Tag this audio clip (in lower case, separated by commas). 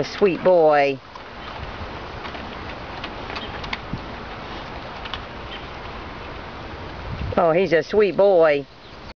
animal, speech